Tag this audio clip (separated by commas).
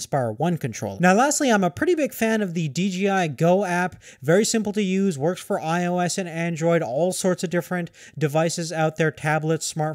Speech